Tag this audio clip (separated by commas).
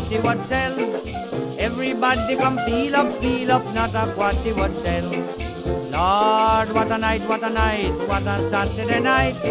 Orchestra, Music